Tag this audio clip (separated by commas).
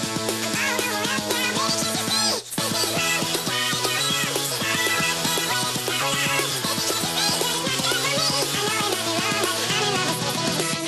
Music